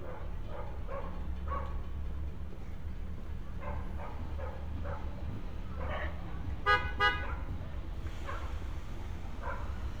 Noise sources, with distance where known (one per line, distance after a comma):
dog barking or whining, near